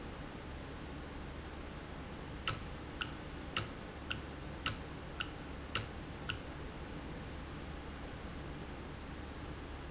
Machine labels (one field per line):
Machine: valve